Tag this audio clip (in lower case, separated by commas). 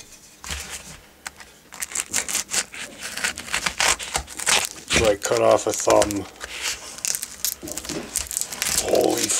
inside a small room, speech